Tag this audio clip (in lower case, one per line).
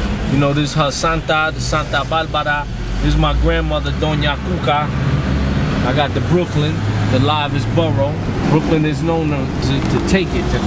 vehicle
car
speech
motor vehicle (road)